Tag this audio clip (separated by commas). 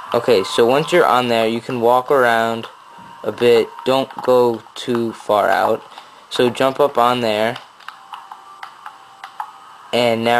Speech